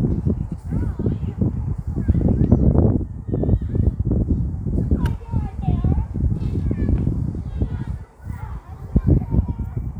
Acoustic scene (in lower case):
park